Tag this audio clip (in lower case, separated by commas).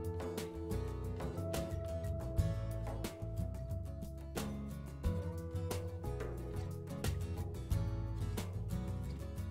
music